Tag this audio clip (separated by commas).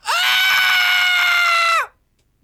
Screaming, Human voice